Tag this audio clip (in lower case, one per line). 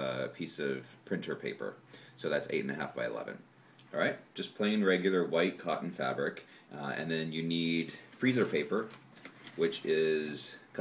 speech